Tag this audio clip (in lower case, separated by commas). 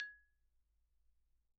mallet percussion, music, marimba, percussion, musical instrument